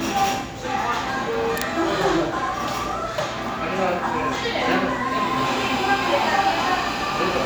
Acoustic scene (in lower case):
cafe